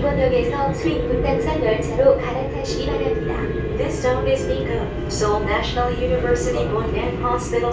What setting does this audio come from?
subway train